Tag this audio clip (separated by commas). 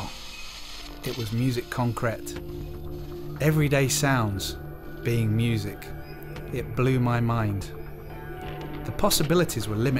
Speech, Music